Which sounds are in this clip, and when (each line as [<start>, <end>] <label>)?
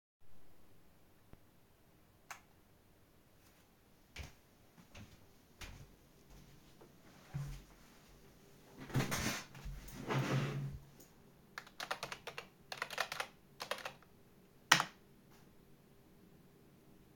[2.19, 2.50] light switch
[3.42, 8.12] footsteps
[11.52, 14.92] keyboard typing